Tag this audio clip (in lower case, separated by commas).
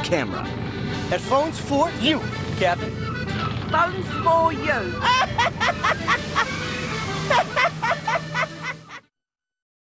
boat, sailboat, vehicle, speech, music